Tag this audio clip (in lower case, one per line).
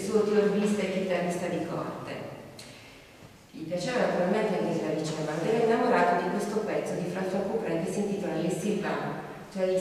speech